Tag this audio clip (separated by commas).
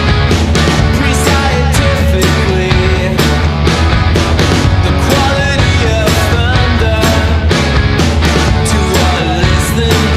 Music